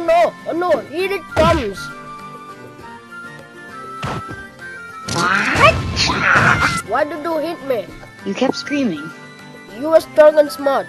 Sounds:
Music, Speech

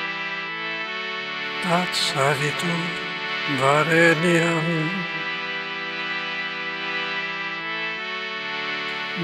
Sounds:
Music, Mantra

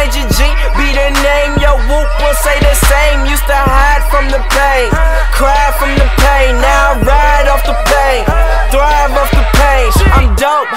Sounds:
Dance music, Music, Pop music

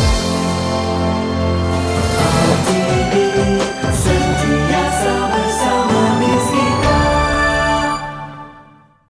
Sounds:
Television, Music

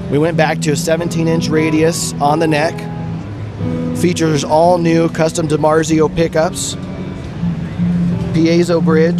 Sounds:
Speech, Music

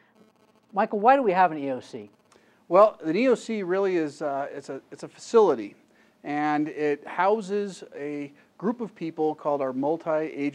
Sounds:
Speech

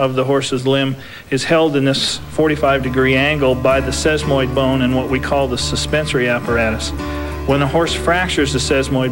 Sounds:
Speech, Music

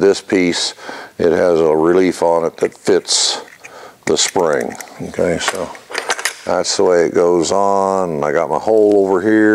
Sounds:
Speech

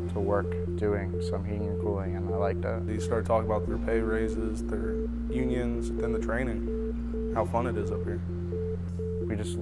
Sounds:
Speech, Music

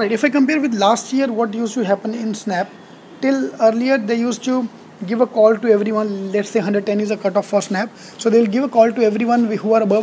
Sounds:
Speech

